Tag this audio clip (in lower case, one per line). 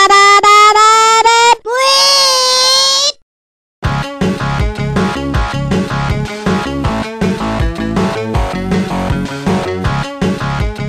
music